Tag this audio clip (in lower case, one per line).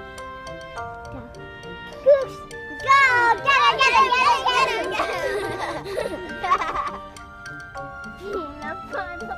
music
speech